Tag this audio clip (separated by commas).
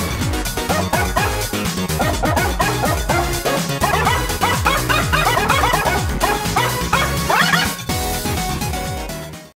Animal, Music, Domestic animals, Dog